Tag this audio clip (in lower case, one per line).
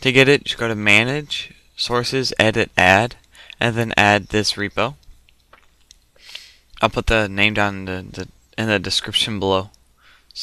speech